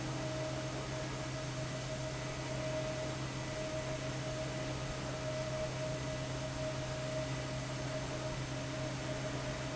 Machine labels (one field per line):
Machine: fan